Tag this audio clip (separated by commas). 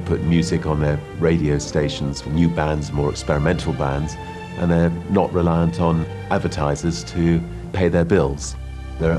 Speech, Music